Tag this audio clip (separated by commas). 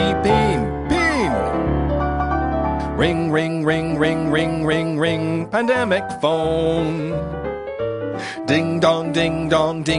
Music